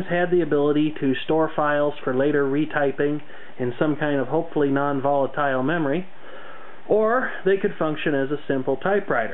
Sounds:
speech

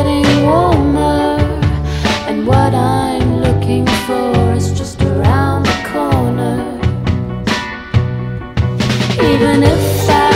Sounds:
soul music

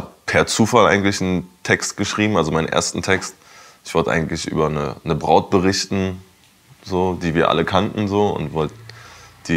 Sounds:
speech

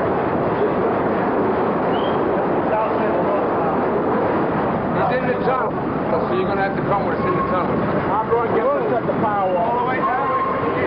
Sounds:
speech
vehicle

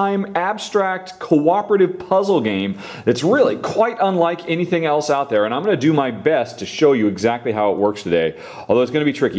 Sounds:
speech

